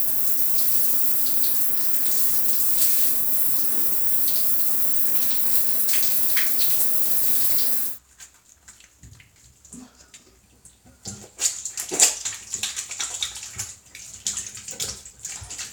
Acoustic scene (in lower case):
restroom